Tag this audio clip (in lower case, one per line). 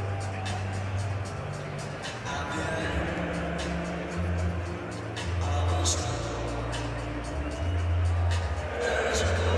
music